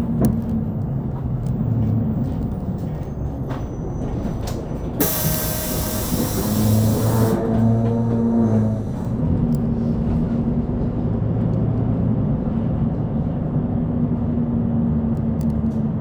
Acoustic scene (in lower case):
bus